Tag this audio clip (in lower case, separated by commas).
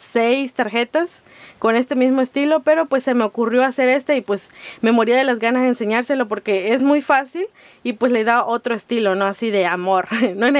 speech